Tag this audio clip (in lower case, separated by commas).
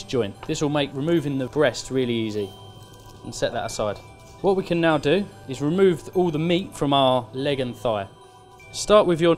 speech, music